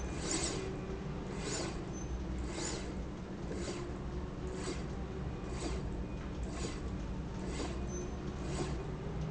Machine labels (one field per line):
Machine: slide rail